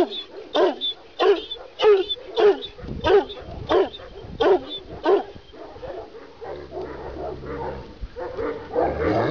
Dog barking then many dogs barking